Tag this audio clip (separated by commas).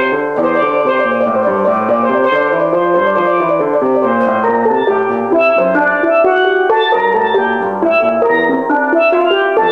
Music, Steelpan